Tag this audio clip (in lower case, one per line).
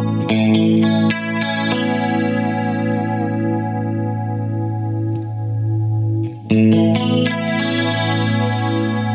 echo
effects unit
music
synthesizer
guitar
musical instrument